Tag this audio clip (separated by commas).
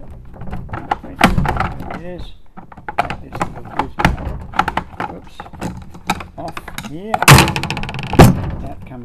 inside a small room, Speech